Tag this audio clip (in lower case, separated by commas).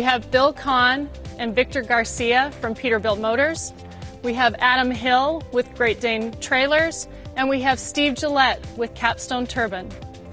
music, speech